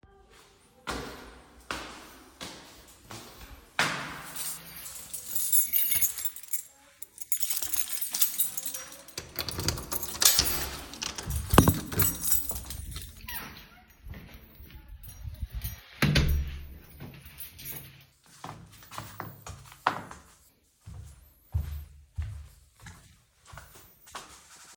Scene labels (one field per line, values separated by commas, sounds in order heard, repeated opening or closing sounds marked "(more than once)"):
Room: living room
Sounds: footsteps, keys, door (more than once)